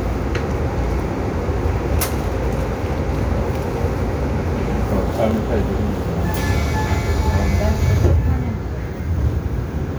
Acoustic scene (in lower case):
subway train